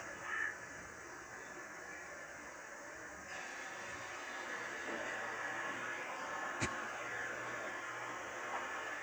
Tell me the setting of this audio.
subway train